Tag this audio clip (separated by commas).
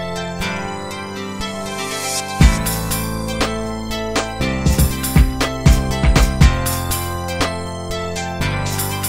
Music